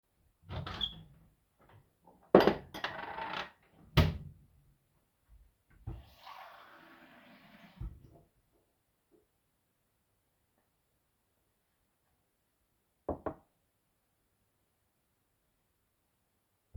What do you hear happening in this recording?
I grabbed a glass from the cupboard and then filled it with water and placed it down.